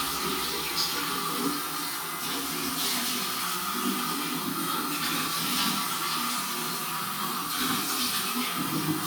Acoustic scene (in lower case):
restroom